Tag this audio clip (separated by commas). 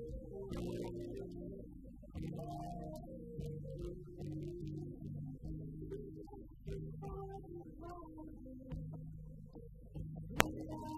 Music